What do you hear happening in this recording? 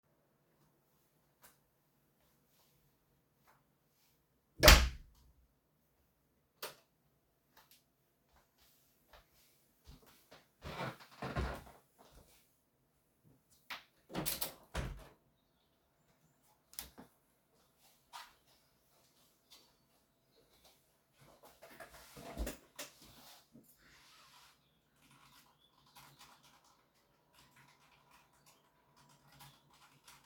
Closed door, turned light on, opned window, walked to workdesk, sat in office char and typed